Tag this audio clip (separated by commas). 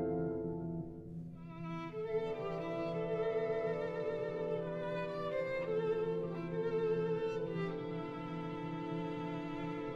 Music, Musical instrument, Violin